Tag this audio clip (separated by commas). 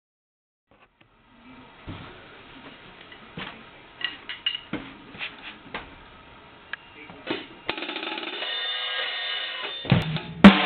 Drum kit, Musical instrument, Cymbal, Drum, Percussion, Hi-hat, Music